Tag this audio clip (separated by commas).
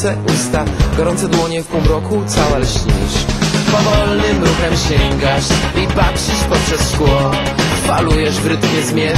Music